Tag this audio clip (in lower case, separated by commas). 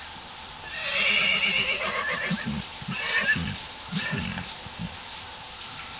bathtub (filling or washing), home sounds, water